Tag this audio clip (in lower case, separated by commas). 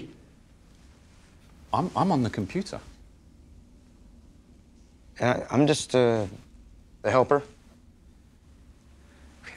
speech